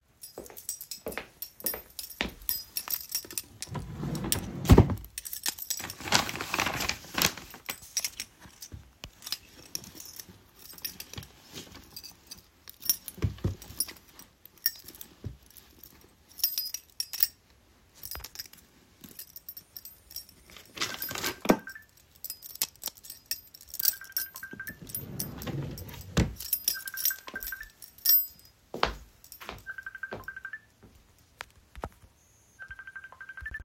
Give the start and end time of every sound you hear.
[0.18, 28.57] keys
[0.22, 2.72] footsteps
[3.70, 5.13] wardrobe or drawer
[20.68, 21.89] phone ringing
[23.70, 24.95] phone ringing
[24.89, 26.36] wardrobe or drawer
[26.58, 27.77] phone ringing
[28.66, 30.73] footsteps
[29.58, 30.70] phone ringing
[32.51, 33.64] phone ringing

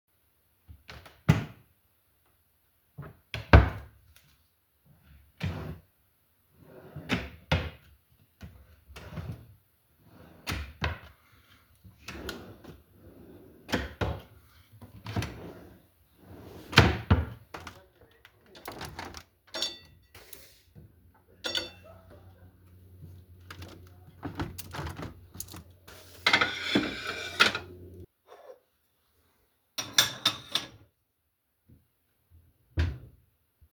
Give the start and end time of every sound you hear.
[0.00, 19.85] wardrobe or drawer
[14.96, 22.02] window
[19.47, 31.45] cutlery and dishes
[23.80, 25.82] window
[32.38, 33.53] wardrobe or drawer

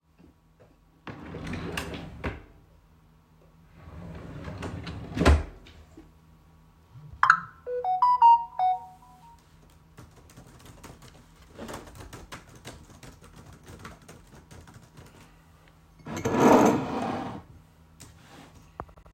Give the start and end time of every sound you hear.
[0.87, 2.52] wardrobe or drawer
[3.72, 5.90] wardrobe or drawer
[7.15, 9.44] phone ringing
[9.59, 15.99] keyboard typing
[15.99, 17.49] cutlery and dishes

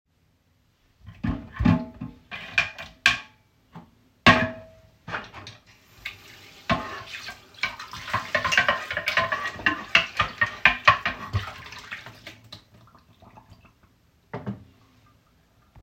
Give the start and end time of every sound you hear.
[1.07, 6.17] cutlery and dishes
[5.91, 13.04] running water
[6.64, 11.91] cutlery and dishes

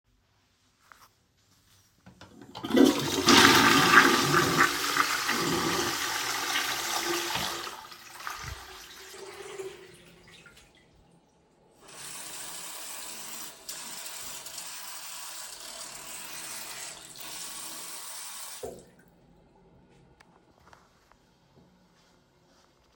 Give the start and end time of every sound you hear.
[2.32, 11.61] toilet flushing
[11.73, 19.26] running water

